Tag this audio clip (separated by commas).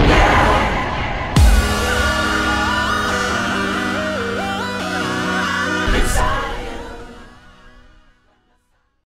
Music